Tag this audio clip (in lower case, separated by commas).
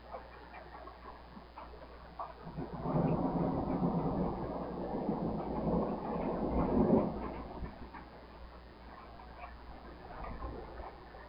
thunderstorm, thunder